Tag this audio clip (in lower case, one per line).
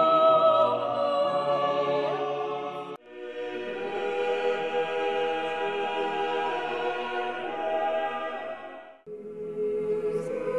classical music
music